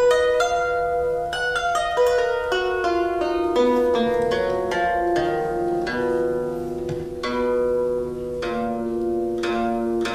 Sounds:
playing harp

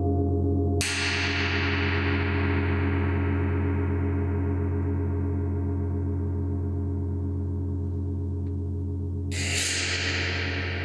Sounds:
playing gong

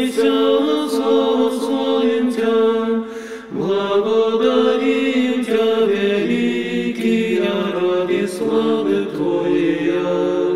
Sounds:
music
mantra

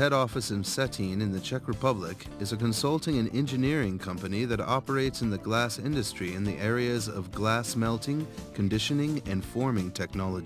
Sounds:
music
speech

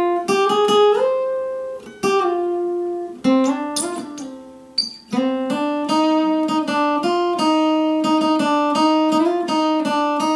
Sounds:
music
acoustic guitar
guitar
musical instrument
playing acoustic guitar
plucked string instrument

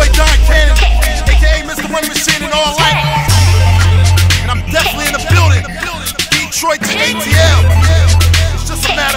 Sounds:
music

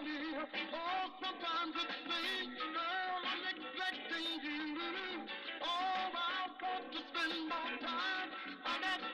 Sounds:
music

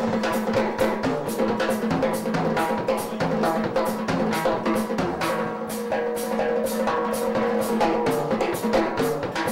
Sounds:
music

